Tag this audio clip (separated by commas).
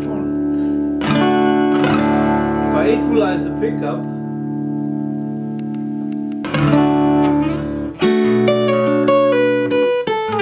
Strum, Plucked string instrument, Musical instrument, Acoustic guitar, Music, Guitar